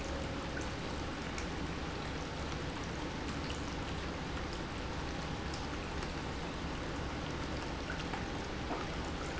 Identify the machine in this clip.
pump